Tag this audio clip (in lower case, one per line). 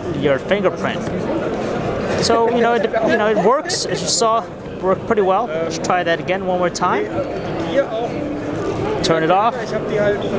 speech